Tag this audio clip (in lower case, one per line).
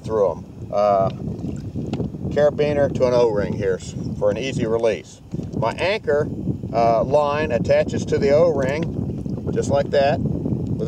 speech
vehicle